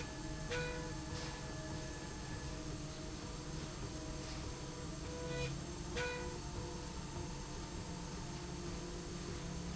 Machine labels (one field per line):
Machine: slide rail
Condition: normal